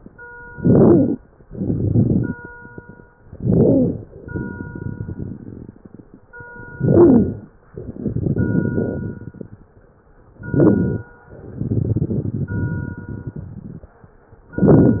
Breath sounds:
0.46-1.16 s: inhalation
0.46-1.16 s: crackles
1.48-2.42 s: exhalation
1.48-2.42 s: crackles
3.32-4.08 s: inhalation
3.32-4.08 s: crackles
4.21-6.25 s: exhalation
4.21-6.25 s: crackles
6.77-7.53 s: inhalation
6.77-7.53 s: crackles
7.70-9.74 s: exhalation
7.70-9.74 s: crackles
10.38-11.14 s: inhalation
10.38-11.14 s: crackles
11.42-13.94 s: exhalation
11.42-13.94 s: crackles
14.57-15.00 s: inhalation
14.57-15.00 s: crackles

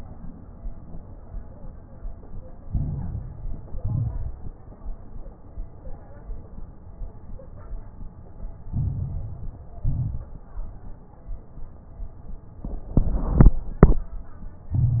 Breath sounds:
2.66-3.76 s: inhalation
2.66-3.76 s: crackles
3.78-4.44 s: exhalation
3.78-4.44 s: crackles
8.68-9.77 s: inhalation
8.68-9.77 s: crackles
9.80-10.39 s: exhalation
9.80-10.39 s: crackles
14.74-15.00 s: inhalation
14.74-15.00 s: crackles

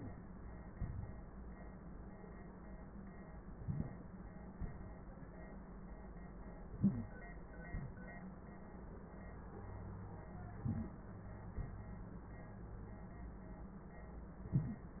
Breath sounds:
0.72-1.12 s: exhalation
3.57-4.18 s: inhalation
4.57-5.18 s: exhalation
6.75-7.17 s: inhalation
7.67-8.08 s: exhalation
10.62-11.08 s: inhalation
11.55-11.96 s: exhalation

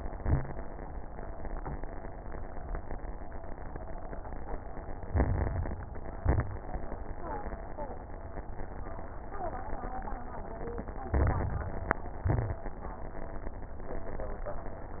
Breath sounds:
0.04-0.47 s: exhalation
0.04-0.47 s: crackles
5.07-5.83 s: inhalation
5.07-5.83 s: crackles
6.14-6.57 s: exhalation
6.14-6.57 s: crackles
11.12-11.99 s: inhalation
11.12-11.99 s: crackles
12.26-12.69 s: exhalation
12.26-12.69 s: crackles

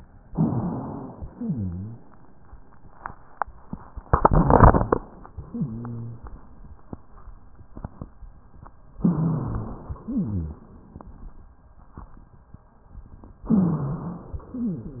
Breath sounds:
0.26-1.14 s: inhalation
0.26-1.14 s: rhonchi
1.14-2.02 s: exhalation
1.14-2.02 s: wheeze
5.32-6.20 s: exhalation
5.32-6.20 s: wheeze
9.00-9.88 s: inhalation
9.00-9.88 s: wheeze
9.92-10.80 s: exhalation
9.92-10.80 s: wheeze
13.46-14.48 s: inhalation
13.52-14.36 s: wheeze
14.48-15.00 s: exhalation
14.48-15.00 s: wheeze

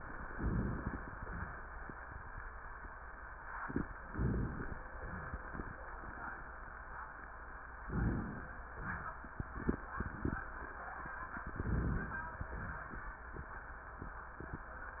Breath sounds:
0.31-1.17 s: inhalation
0.31-1.17 s: crackles
1.17-1.70 s: exhalation
4.10-4.79 s: inhalation
4.10-4.79 s: crackles
5.08-5.76 s: exhalation
5.08-5.76 s: crackles
7.86-8.59 s: inhalation
8.73-9.27 s: exhalation
11.30-12.27 s: inhalation
11.30-12.27 s: crackles
12.27-13.18 s: exhalation

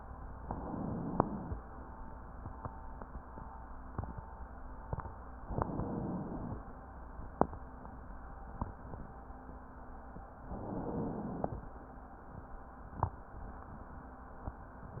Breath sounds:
0.40-1.58 s: inhalation
5.47-6.65 s: inhalation
10.44-11.61 s: inhalation

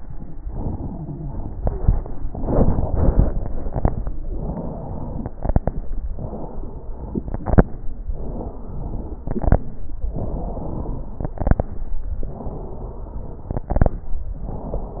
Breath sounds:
0.37-1.50 s: inhalation
1.52-2.04 s: crackles
1.55-2.09 s: exhalation
2.16-2.91 s: inhalation
3.53-4.05 s: crackles
3.54-4.08 s: exhalation
4.20-5.33 s: inhalation
4.26-5.31 s: wheeze
4.26-5.31 s: wheeze
5.42-5.94 s: crackles
5.44-5.97 s: exhalation
6.13-7.34 s: inhalation
6.24-7.29 s: wheeze
7.39-7.86 s: exhalation
7.41-7.87 s: crackles
8.06-9.27 s: inhalation
8.18-9.23 s: wheeze
9.29-9.66 s: exhalation
9.29-9.71 s: crackles
10.05-11.26 s: inhalation
10.18-11.23 s: wheeze
11.27-11.69 s: exhalation
11.27-11.70 s: crackles
12.21-13.66 s: inhalation
12.22-13.64 s: wheeze
13.66-14.09 s: crackles
13.68-14.09 s: exhalation
14.32-15.00 s: wheeze
14.34-14.97 s: inhalation

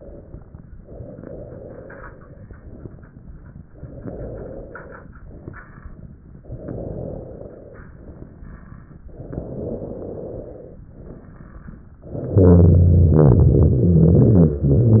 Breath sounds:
0.00-0.72 s: exhalation
0.80-2.44 s: inhalation
2.46-3.72 s: exhalation
3.75-5.06 s: inhalation
5.19-6.30 s: exhalation
6.45-7.77 s: inhalation
7.85-8.97 s: exhalation
9.11-10.79 s: inhalation
10.86-11.97 s: exhalation
12.30-14.62 s: inhalation
14.62-15.00 s: exhalation

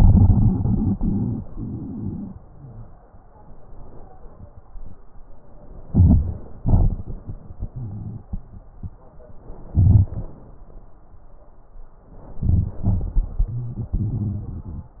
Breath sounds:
5.86-6.61 s: inhalation
5.86-6.61 s: crackles
6.62-7.37 s: exhalation
6.62-7.37 s: crackles
9.72-10.47 s: inhalation
9.72-10.47 s: crackles
12.34-12.82 s: inhalation
12.34-12.82 s: crackles
12.87-15.00 s: exhalation
12.87-15.00 s: crackles

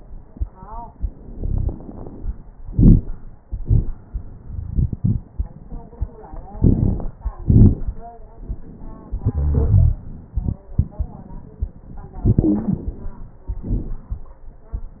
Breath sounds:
1.30-1.70 s: wheeze
6.61-7.08 s: inhalation
6.61-7.08 s: crackles
7.41-7.88 s: exhalation
7.41-7.88 s: crackles
9.36-10.01 s: wheeze
12.22-12.93 s: inhalation
12.27-12.86 s: wheeze
13.56-14.27 s: exhalation
13.56-14.27 s: crackles

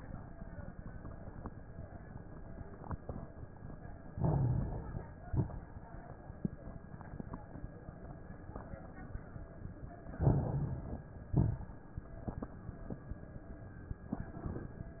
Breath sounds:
4.08-5.05 s: inhalation
4.08-5.05 s: crackles
5.26-5.75 s: exhalation
5.26-5.75 s: crackles
10.17-11.14 s: inhalation
10.17-11.14 s: crackles
11.31-11.80 s: exhalation
11.31-11.80 s: crackles

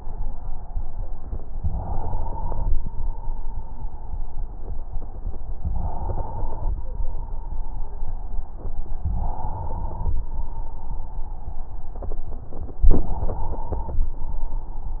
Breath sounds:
1.50-2.79 s: inhalation
2.77-4.29 s: exhalation
5.71-6.71 s: inhalation
6.77-8.79 s: exhalation
9.13-10.12 s: inhalation
10.14-11.93 s: exhalation
12.93-14.06 s: inhalation

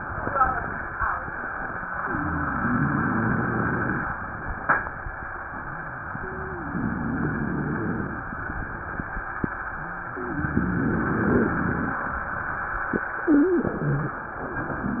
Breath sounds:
2.07-4.16 s: inhalation
2.07-4.16 s: wheeze
6.17-8.35 s: inhalation
6.17-8.35 s: wheeze
10.15-12.11 s: inhalation
10.15-12.11 s: wheeze
13.28-14.22 s: wheeze

